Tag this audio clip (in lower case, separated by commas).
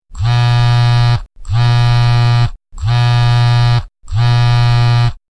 telephone, alarm